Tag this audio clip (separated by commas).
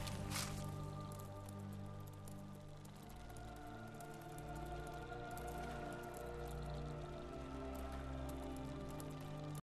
Music